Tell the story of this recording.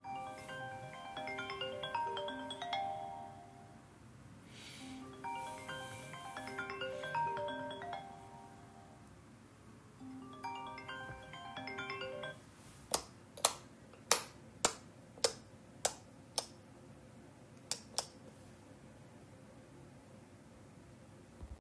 I turn off and on the light a couple of times and my phone rings, after it stopped ringing I switched the light again a couple of times, the sounds partially overlap each other.